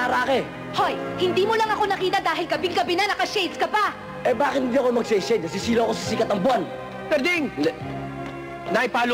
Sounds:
Music, Speech

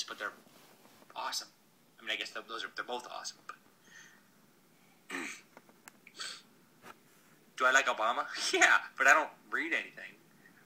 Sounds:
inside a small room, Speech

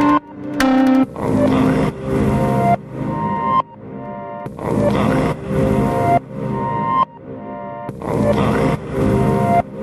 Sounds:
Music

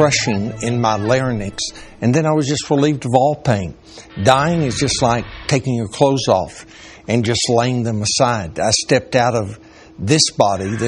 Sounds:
Speech

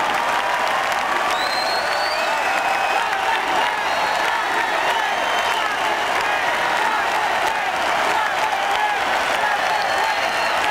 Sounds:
man speaking, Speech

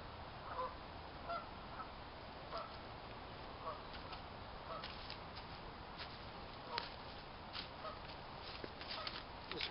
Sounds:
outside, rural or natural, Speech

